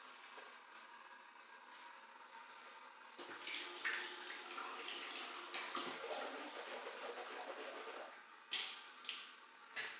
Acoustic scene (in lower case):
restroom